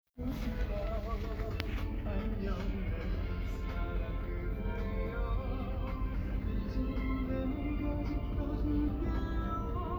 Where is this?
in a car